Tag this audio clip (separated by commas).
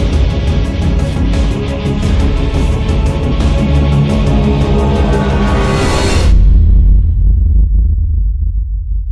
Music